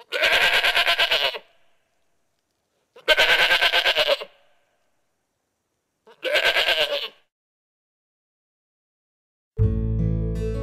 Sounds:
goat bleating

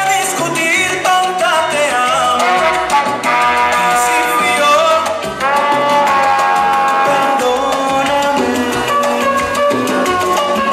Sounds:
salsa music
music

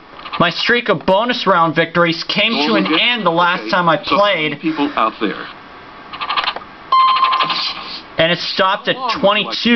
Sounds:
speech

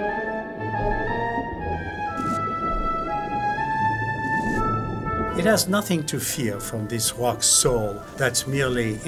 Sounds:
speech
music

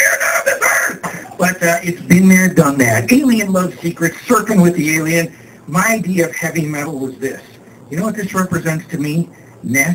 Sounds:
speech

